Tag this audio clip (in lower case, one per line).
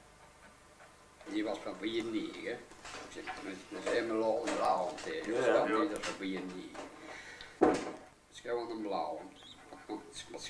speech
inside a small room